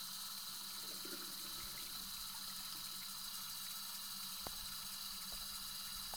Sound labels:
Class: water tap